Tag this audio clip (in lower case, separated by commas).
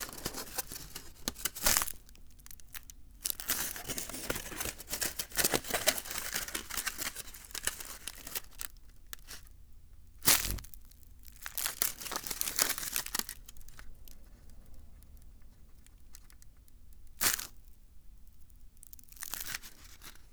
crinkling